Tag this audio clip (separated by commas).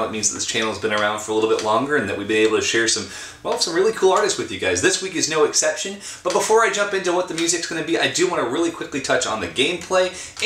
Speech